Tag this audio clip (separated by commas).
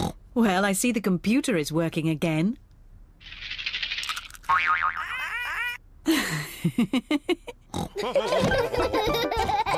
Boing, inside a small room, Music, Speech